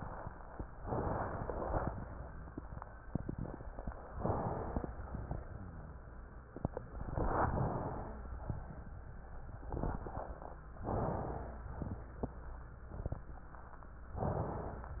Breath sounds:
0.82-1.87 s: inhalation
2.03-2.53 s: rhonchi
4.12-4.88 s: inhalation
4.12-4.88 s: wheeze
4.94-5.32 s: exhalation
5.54-6.04 s: rhonchi
6.99-7.99 s: inhalation
7.83-8.41 s: wheeze
8.49-8.94 s: exhalation
10.78-11.69 s: inhalation
10.86-11.69 s: wheeze
11.85-12.29 s: exhalation
14.36-14.96 s: wheeze

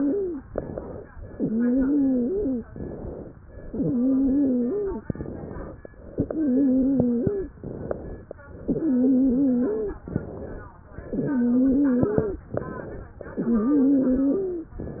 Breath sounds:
0.00-0.42 s: wheeze
0.49-1.08 s: inhalation
1.18-2.62 s: exhalation
1.27-2.62 s: wheeze
2.75-3.34 s: inhalation
3.53-5.01 s: exhalation
3.64-5.01 s: wheeze
5.10-5.69 s: inhalation
6.17-7.53 s: exhalation
6.17-7.53 s: wheeze
7.63-8.22 s: inhalation
8.65-10.02 s: exhalation
8.65-10.02 s: wheeze
10.09-10.72 s: inhalation
11.04-12.45 s: exhalation
11.04-12.45 s: wheeze
12.56-13.19 s: inhalation
13.38-14.78 s: exhalation
13.38-14.78 s: wheeze

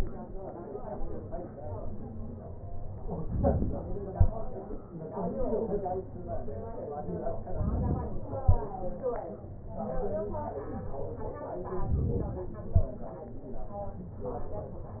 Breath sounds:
3.19-4.17 s: inhalation
7.50-8.47 s: inhalation
11.87-12.84 s: inhalation

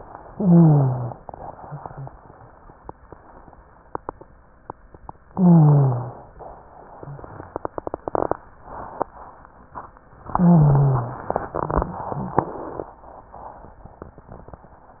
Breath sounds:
0.27-1.16 s: inhalation
0.27-1.16 s: wheeze
5.29-6.19 s: inhalation
5.29-6.19 s: wheeze
10.34-11.23 s: inhalation
10.34-11.23 s: wheeze

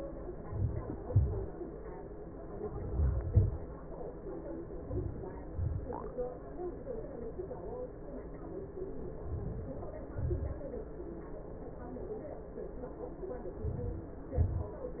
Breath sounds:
0.32-1.18 s: inhalation
1.14-1.82 s: exhalation
2.35-3.23 s: inhalation
3.23-3.80 s: exhalation
9.16-9.94 s: inhalation
9.96-10.74 s: exhalation

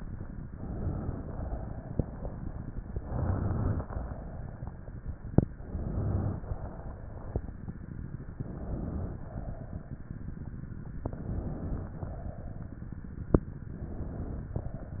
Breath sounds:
0.48-1.23 s: inhalation
1.24-2.25 s: exhalation
2.93-3.84 s: inhalation
3.84-4.86 s: exhalation
5.57-6.41 s: inhalation
6.41-7.44 s: exhalation
8.36-9.21 s: inhalation
9.19-10.13 s: exhalation
11.00-11.94 s: inhalation
11.96-12.91 s: exhalation
13.69-14.54 s: inhalation
14.54-15.00 s: exhalation

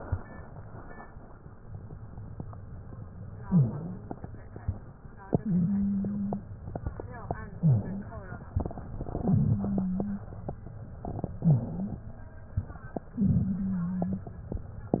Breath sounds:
3.44-4.08 s: inhalation
3.44-4.08 s: wheeze
5.43-6.47 s: wheeze
7.61-8.14 s: inhalation
7.61-8.14 s: wheeze
9.18-10.27 s: wheeze
11.42-12.07 s: inhalation
11.42-12.07 s: wheeze
13.19-14.33 s: wheeze

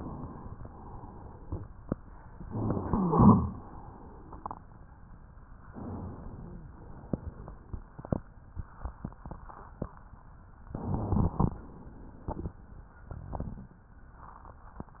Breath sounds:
10.71-11.59 s: inhalation
10.71-11.59 s: crackles

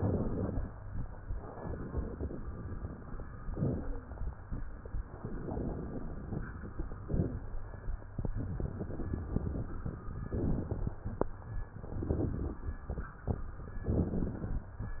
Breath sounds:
0.00-0.68 s: crackles
0.00-0.74 s: inhalation
1.32-3.20 s: exhalation
3.52-4.26 s: inhalation
3.52-4.17 s: wheeze
5.12-7.00 s: exhalation
7.02-7.47 s: rhonchi
7.02-7.83 s: inhalation
8.34-10.22 s: exhalation
10.34-10.94 s: crackles
10.36-11.27 s: inhalation
11.72-13.33 s: exhalation
13.80-14.63 s: crackles
13.80-14.72 s: inhalation

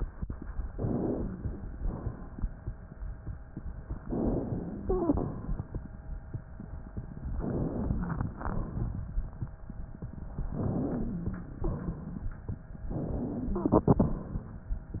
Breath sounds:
0.74-1.75 s: inhalation
1.75-2.45 s: exhalation
4.04-4.90 s: inhalation
4.80-5.26 s: wheeze
4.90-5.73 s: exhalation
7.40-8.43 s: inhalation
8.43-9.20 s: exhalation
10.55-11.33 s: inhalation
11.01-11.59 s: wheeze
11.65-12.43 s: exhalation
12.98-13.76 s: inhalation
13.60-14.06 s: wheeze
13.76-14.65 s: exhalation

